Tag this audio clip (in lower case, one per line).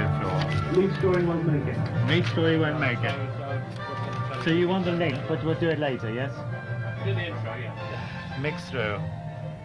speech
music